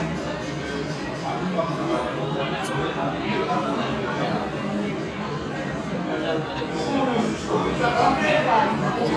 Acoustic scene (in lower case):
restaurant